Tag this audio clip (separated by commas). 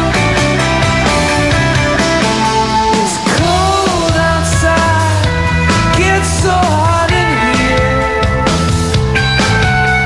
Music